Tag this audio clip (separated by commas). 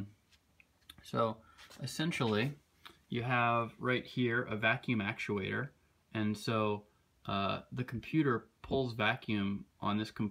Speech